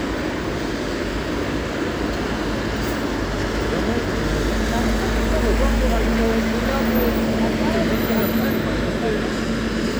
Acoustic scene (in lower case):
street